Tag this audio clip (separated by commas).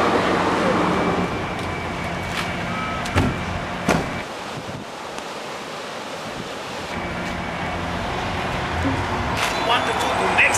Speech, outside, urban or man-made